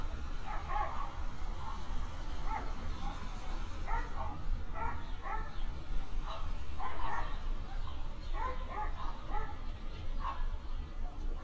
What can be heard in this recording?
dog barking or whining